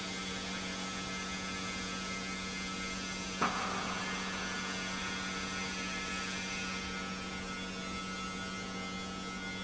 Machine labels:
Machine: pump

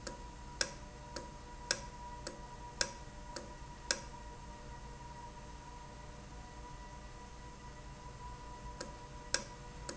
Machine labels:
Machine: valve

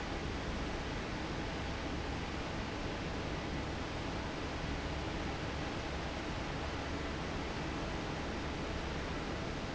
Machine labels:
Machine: fan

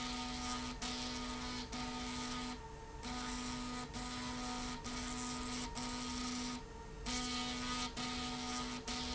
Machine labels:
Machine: slide rail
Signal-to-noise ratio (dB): 6 dB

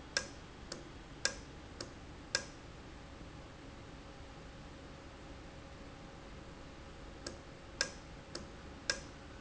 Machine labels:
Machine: valve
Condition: normal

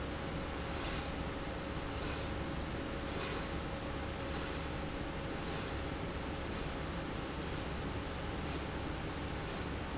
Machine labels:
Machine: slide rail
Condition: normal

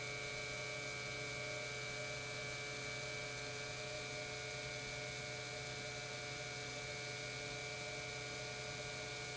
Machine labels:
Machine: pump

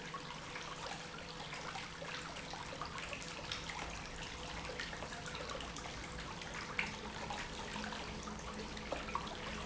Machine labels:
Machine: pump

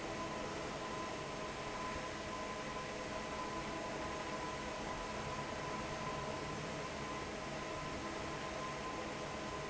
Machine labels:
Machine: fan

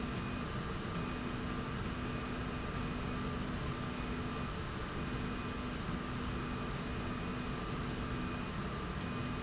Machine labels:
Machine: slide rail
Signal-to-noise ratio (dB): -6 dB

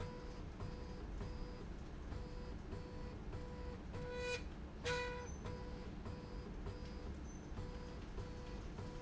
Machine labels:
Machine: slide rail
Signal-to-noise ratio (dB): 6 dB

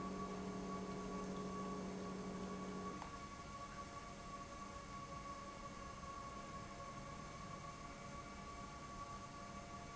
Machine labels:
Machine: pump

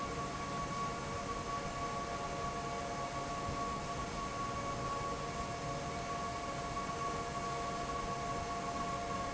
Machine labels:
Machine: fan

